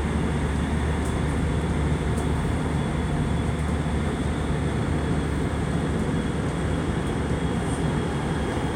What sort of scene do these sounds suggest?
subway train